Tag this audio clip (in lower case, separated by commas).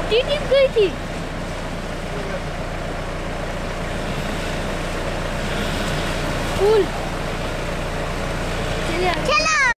speech